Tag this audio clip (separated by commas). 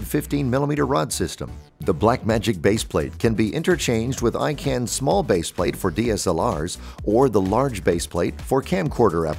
Music, Speech